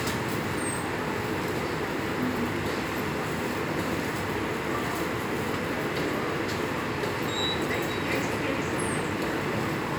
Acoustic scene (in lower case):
subway station